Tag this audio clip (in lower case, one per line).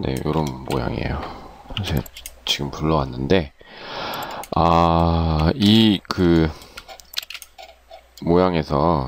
speech